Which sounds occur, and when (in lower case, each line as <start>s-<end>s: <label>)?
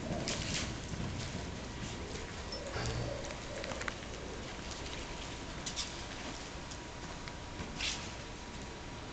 0.0s-7.2s: clip-clop
0.0s-9.1s: mechanisms
0.2s-0.7s: whip
5.6s-5.9s: generic impact sounds
7.5s-7.7s: generic impact sounds
7.8s-8.0s: whip
8.0s-8.8s: generic impact sounds